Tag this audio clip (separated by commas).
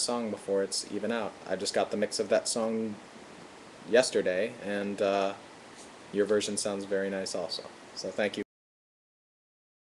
Speech